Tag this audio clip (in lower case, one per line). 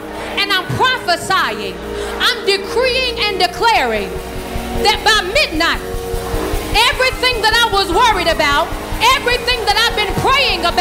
speech
music